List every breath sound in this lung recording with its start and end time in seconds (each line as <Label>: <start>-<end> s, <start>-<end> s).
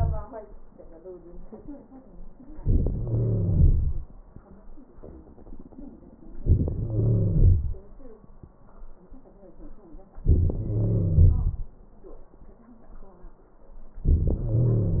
Wheeze: 2.98-4.08 s, 6.73-7.83 s, 10.62-11.72 s, 14.41-15.00 s